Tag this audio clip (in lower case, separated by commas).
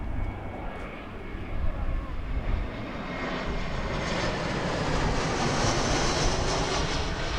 aircraft, vehicle, airplane